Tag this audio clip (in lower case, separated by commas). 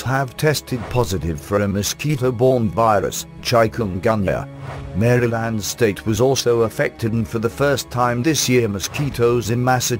speech, music